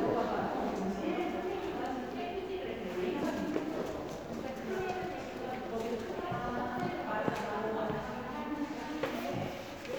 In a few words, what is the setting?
crowded indoor space